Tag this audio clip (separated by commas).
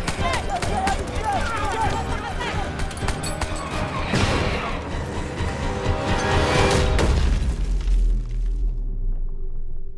Speech